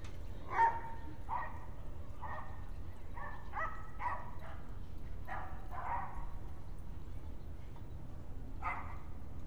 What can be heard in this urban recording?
dog barking or whining